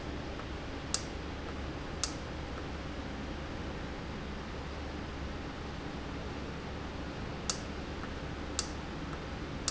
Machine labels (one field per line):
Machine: valve